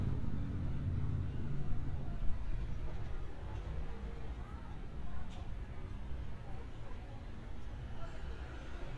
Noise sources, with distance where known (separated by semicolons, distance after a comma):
engine of unclear size, far